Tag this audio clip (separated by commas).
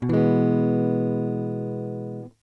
Musical instrument, Strum, Music, Guitar, Electric guitar, Plucked string instrument